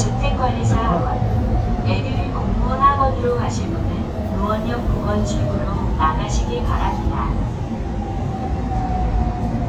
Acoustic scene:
subway train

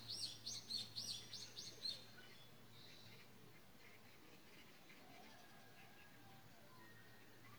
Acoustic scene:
park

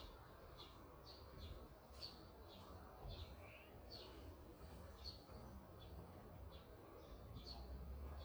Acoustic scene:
park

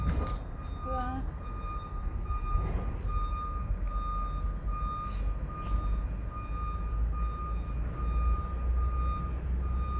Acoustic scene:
residential area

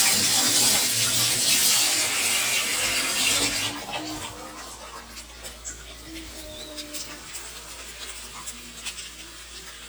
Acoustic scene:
kitchen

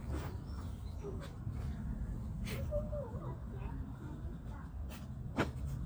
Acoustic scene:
park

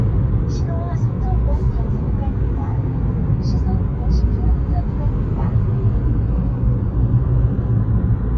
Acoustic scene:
car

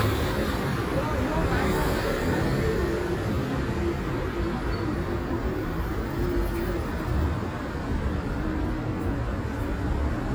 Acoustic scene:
street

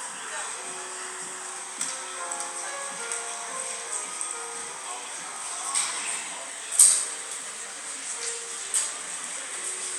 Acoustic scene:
cafe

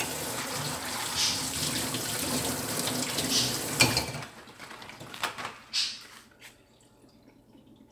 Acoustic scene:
kitchen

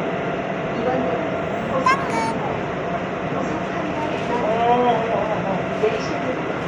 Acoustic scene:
subway train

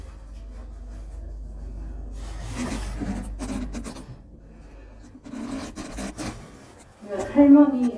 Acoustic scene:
elevator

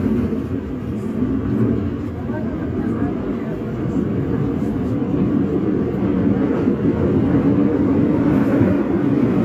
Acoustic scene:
subway train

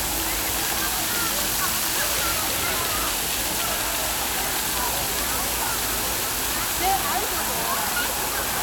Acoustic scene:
park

